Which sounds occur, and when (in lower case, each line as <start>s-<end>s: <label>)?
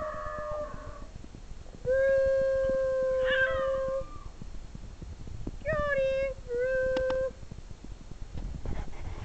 0.0s-0.9s: howl
0.0s-9.2s: mains hum
0.0s-9.2s: wind noise (microphone)
1.8s-4.1s: human voice
3.1s-4.3s: howl
5.6s-6.3s: human voice
6.5s-7.3s: human voice